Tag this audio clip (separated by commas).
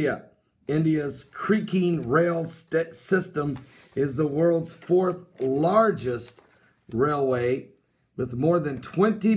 Speech